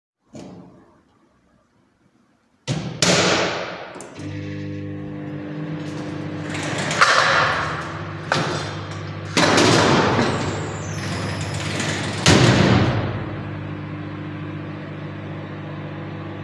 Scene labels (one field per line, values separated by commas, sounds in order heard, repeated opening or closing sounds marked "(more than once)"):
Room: kitchen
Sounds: door (more than once), microwave, wardrobe or drawer (more than once), cutlery and dishes